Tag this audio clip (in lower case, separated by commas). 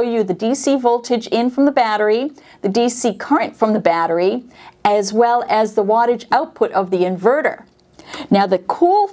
speech